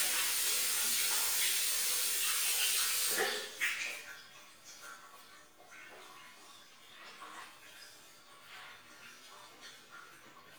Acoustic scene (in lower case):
restroom